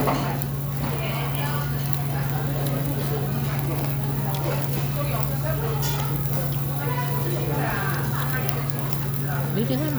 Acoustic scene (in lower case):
restaurant